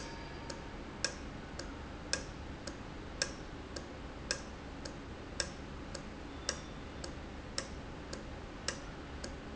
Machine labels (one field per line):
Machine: valve